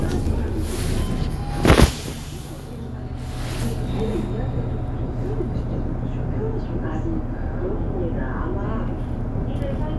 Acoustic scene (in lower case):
bus